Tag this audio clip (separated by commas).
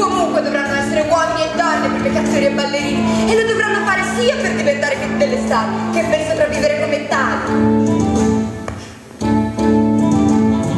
Speech, Music